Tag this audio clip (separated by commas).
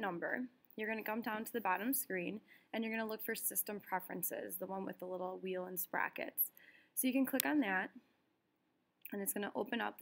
Speech